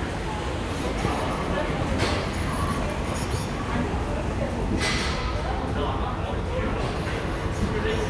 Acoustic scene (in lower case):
subway station